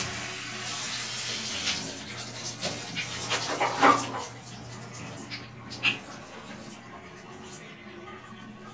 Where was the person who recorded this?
in a restroom